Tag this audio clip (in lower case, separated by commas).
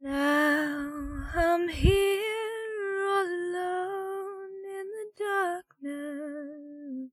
singing, female singing, human voice